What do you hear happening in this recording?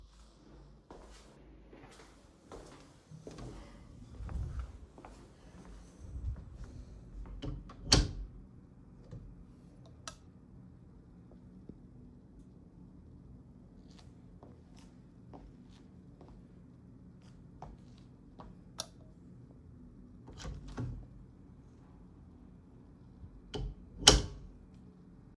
I walked into the hallway switched the light on and opened a door.